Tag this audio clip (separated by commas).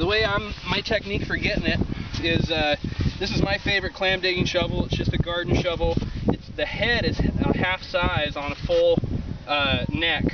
Speech